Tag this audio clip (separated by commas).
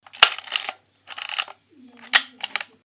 Mechanisms, Camera